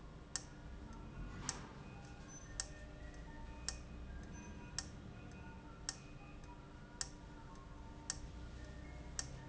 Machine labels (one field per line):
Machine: valve